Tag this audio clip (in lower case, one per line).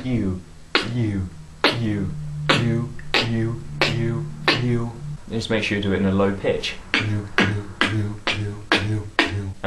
music
beatboxing
speech